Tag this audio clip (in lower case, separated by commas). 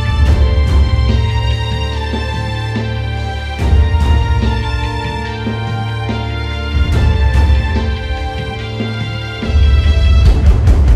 music